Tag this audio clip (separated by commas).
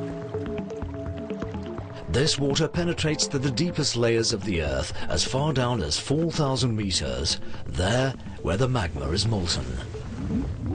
Speech, Music, Stream